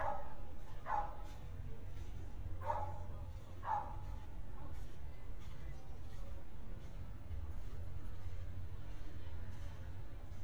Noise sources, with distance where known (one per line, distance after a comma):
dog barking or whining